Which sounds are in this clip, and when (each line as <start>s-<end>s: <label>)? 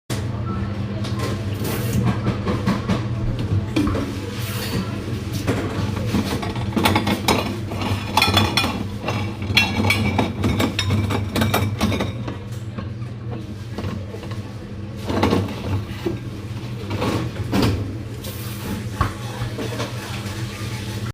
6.8s-11.6s: cutlery and dishes
18.2s-21.1s: running water